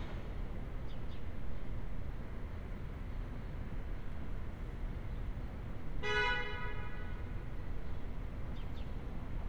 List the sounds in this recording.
car horn